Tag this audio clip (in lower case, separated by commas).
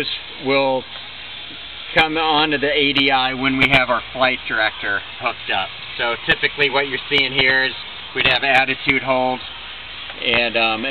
speech, vehicle